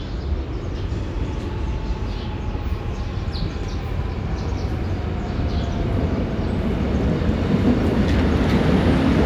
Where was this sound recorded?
in a subway station